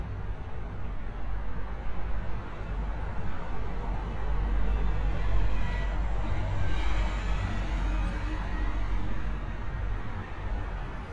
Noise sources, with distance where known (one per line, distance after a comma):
engine of unclear size